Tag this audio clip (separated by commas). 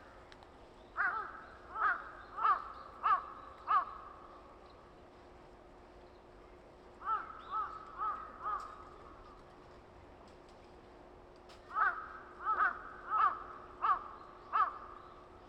Wild animals, Animal, Bird, Crow